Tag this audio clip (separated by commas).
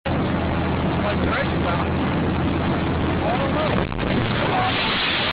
Speech